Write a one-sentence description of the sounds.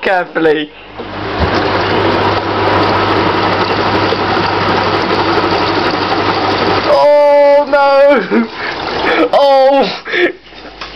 An adult male is speaking, a motor is running, rhythmic vibration, and water is gurgling